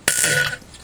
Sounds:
fart

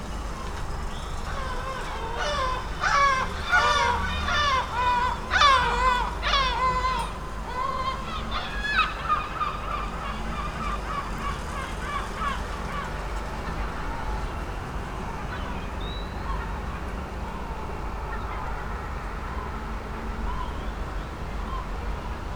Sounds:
bird, animal, wild animals, gull

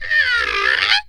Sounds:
wood

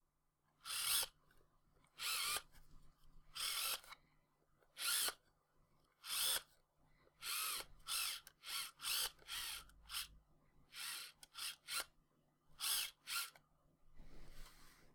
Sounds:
mechanisms, camera

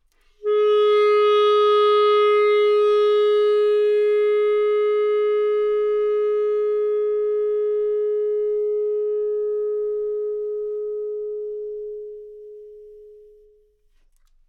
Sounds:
music, musical instrument, wind instrument

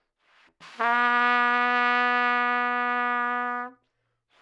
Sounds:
music, musical instrument, brass instrument, trumpet

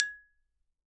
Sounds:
musical instrument, music, xylophone, mallet percussion, percussion

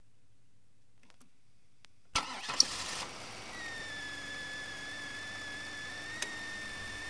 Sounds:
engine, engine starting, vehicle, car, motor vehicle (road)

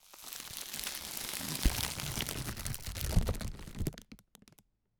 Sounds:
crackle

